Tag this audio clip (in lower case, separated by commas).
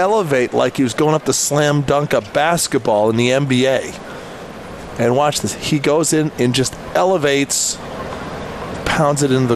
speech